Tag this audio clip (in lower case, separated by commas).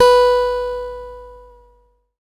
plucked string instrument, music, musical instrument, guitar, acoustic guitar